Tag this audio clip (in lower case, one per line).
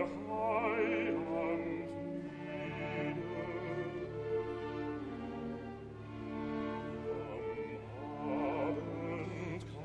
music
musical instrument
bowed string instrument
inside a large room or hall